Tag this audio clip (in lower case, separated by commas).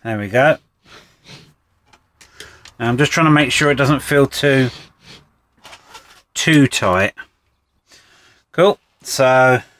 speech